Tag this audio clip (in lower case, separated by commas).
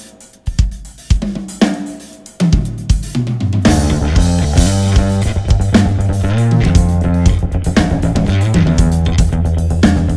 hi-hat, cymbal